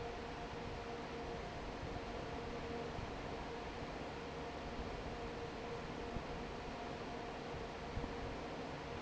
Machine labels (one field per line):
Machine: fan